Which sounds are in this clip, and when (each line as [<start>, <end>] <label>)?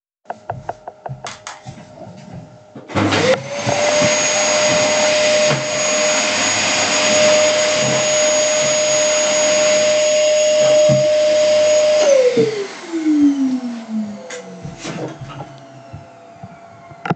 [0.99, 2.88] footsteps
[2.89, 17.15] vacuum cleaner